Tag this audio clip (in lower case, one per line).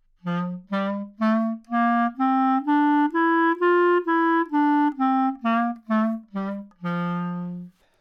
musical instrument
music
woodwind instrument